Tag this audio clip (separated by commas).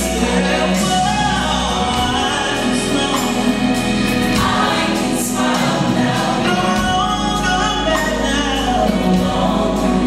Music, Choir